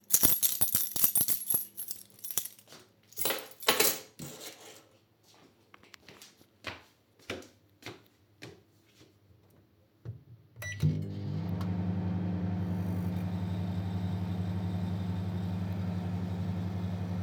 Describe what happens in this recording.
I walked through the kitchen holding a keychain. Footsteps were audible while moving around. A microwave was then started briefly.